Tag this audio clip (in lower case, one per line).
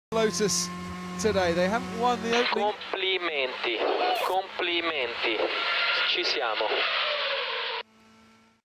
speech
radio